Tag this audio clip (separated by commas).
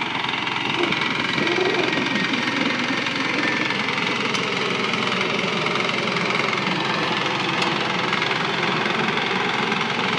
tractor digging